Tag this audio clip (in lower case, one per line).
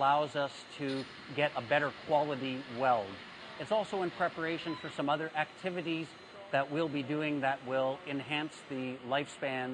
speech